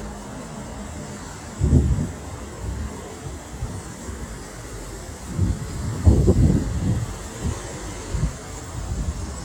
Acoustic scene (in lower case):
street